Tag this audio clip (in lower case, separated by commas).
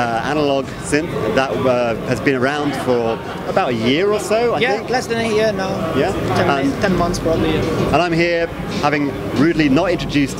speech